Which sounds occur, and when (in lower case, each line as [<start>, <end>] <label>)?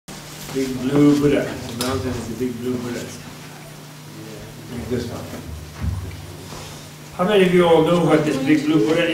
[0.04, 9.13] mechanisms
[0.42, 0.65] generic impact sounds
[0.48, 1.56] male speech
[0.50, 9.13] conversation
[0.88, 1.22] generic impact sounds
[1.67, 1.88] generic impact sounds
[1.74, 3.16] male speech
[2.12, 2.35] generic impact sounds
[2.72, 3.15] generic impact sounds
[4.12, 4.51] male speech
[4.70, 5.47] male speech
[4.82, 5.35] generic impact sounds
[5.70, 6.12] generic impact sounds
[6.45, 6.84] surface contact
[7.19, 9.13] male speech
[7.89, 7.96] generic impact sounds
[8.25, 8.38] generic impact sounds
[8.27, 9.03] woman speaking
[8.52, 8.61] generic impact sounds